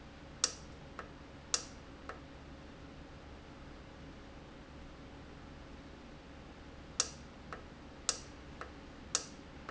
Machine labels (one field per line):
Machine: valve